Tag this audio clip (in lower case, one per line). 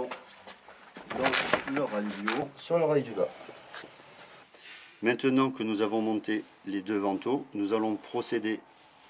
speech